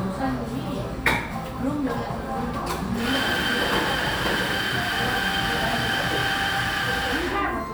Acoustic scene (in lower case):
cafe